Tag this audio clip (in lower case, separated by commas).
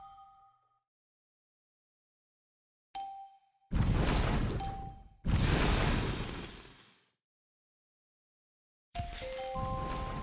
silence